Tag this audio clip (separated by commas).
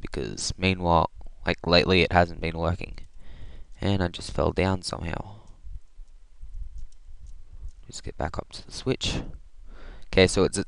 Speech